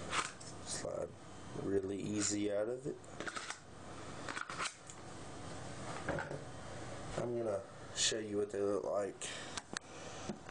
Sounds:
inside a small room
speech

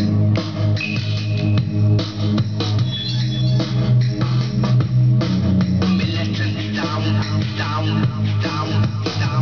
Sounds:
music

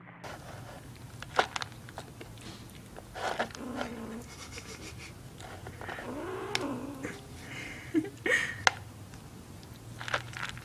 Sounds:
cat growling

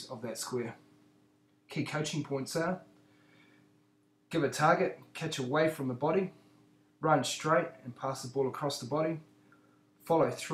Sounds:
speech

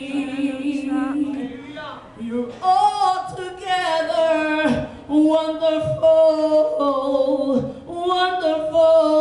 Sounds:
female singing
speech

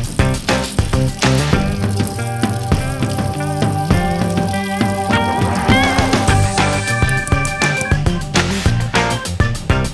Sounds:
music

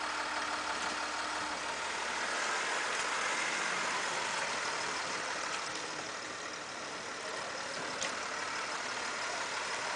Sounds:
car
vehicle

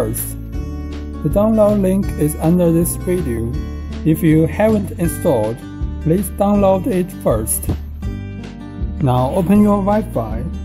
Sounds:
music
speech

